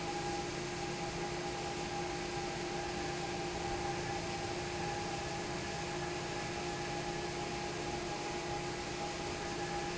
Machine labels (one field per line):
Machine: fan